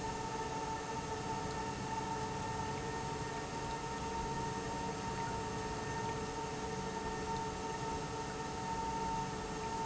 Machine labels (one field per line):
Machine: pump